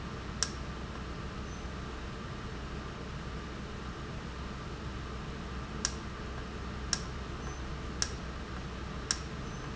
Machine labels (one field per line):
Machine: valve